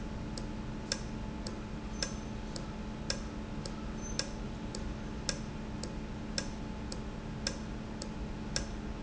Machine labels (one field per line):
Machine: valve